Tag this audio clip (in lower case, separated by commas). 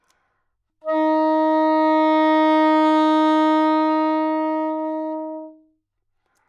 music, woodwind instrument, musical instrument